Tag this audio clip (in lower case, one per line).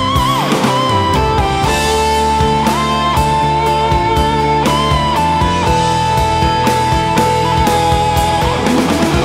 music
guitar
playing electric guitar
musical instrument
plucked string instrument
electric guitar